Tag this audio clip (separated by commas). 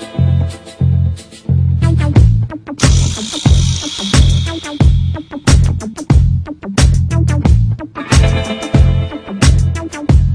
Music